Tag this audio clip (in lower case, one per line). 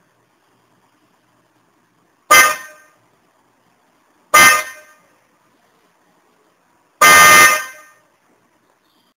inside a small room
vehicle horn